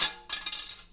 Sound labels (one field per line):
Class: object falling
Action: being thrown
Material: plastic